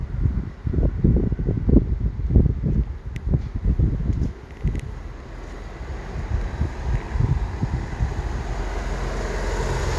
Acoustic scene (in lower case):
residential area